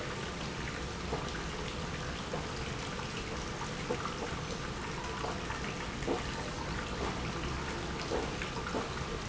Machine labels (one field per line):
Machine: pump